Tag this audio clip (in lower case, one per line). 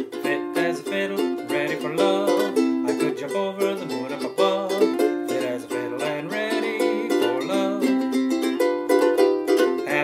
pizzicato